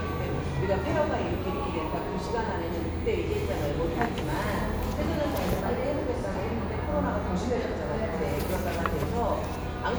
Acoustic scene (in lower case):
cafe